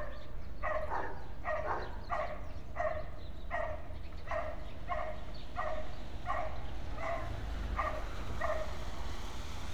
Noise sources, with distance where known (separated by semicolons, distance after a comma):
medium-sounding engine, near; dog barking or whining, near